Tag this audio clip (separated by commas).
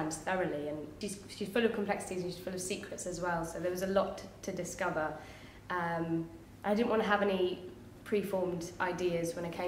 Speech